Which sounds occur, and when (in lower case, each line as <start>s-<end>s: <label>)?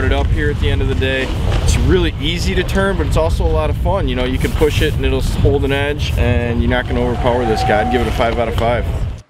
0.0s-9.2s: wind
1.6s-8.8s: male speech
5.2s-5.5s: surface contact
7.2s-8.4s: sound effect
8.5s-8.7s: clicking